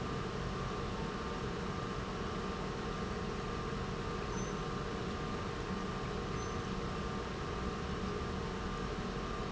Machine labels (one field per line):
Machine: pump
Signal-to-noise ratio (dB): -6 dB